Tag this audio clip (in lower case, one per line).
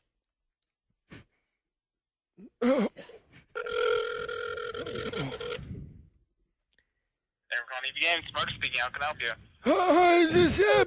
radio
speech